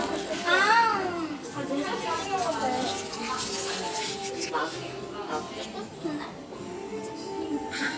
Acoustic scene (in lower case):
cafe